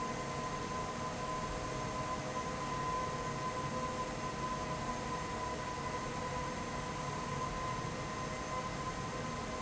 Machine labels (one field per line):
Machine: fan